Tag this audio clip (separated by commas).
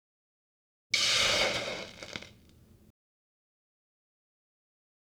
Hiss